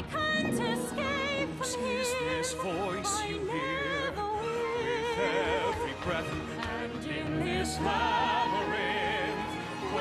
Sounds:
opera, music

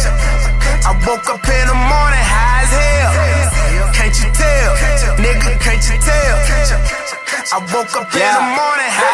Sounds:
music

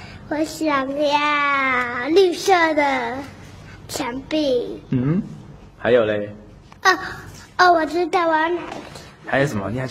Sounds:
speech

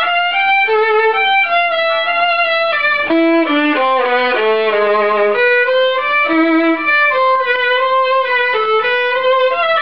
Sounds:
musical instrument, music, violin

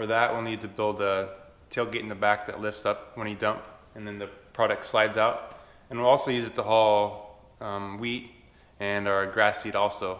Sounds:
speech

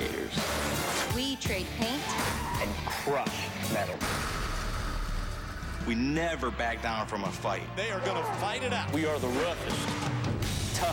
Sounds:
music, car, vehicle, speech

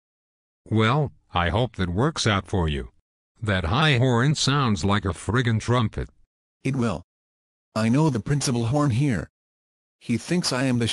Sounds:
speech, speech synthesizer

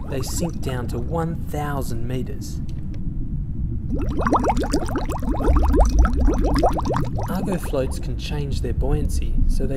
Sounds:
speech

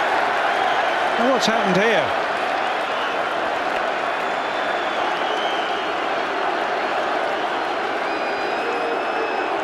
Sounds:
speech

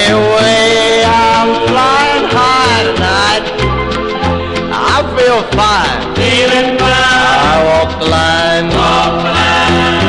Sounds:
music

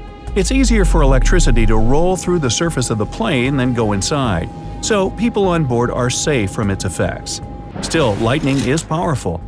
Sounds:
airplane

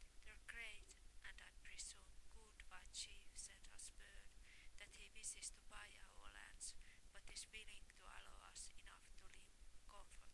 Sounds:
speech, woman speaking

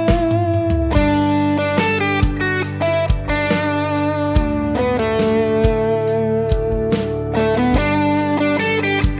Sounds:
plucked string instrument, music, musical instrument, guitar, bass guitar

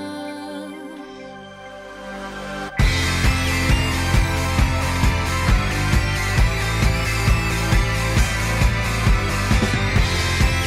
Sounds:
music

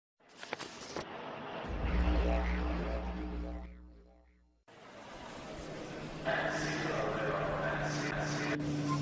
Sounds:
inside a large room or hall, speech, music

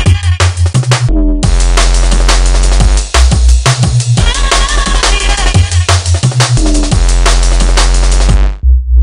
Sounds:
electronic music, music, drum and bass

